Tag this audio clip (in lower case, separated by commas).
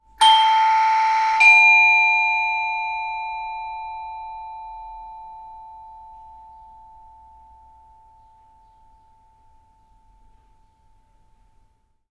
alarm, door, domestic sounds, doorbell